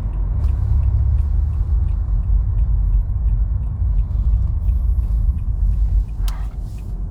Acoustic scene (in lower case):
car